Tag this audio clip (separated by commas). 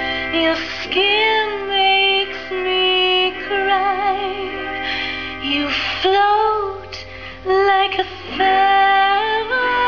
Female singing, Music